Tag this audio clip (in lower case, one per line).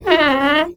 squeak